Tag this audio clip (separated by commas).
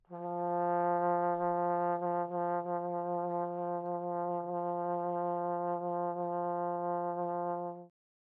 Music, Brass instrument, Musical instrument